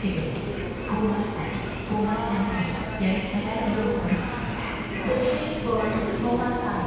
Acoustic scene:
subway station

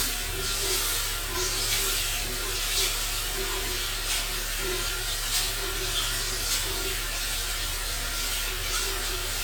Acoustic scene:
restroom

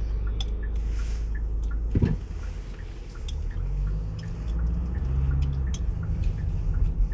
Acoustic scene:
car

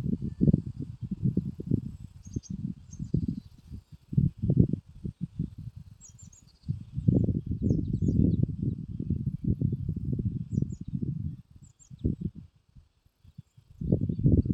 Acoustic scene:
park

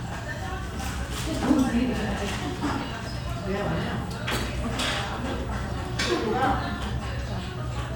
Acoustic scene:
restaurant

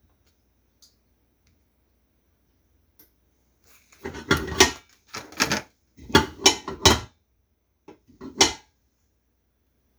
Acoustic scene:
kitchen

